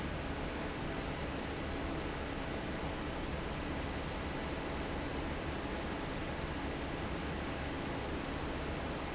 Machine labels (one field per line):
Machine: fan